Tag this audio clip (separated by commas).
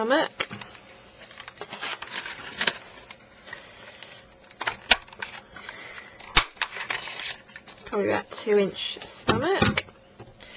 Speech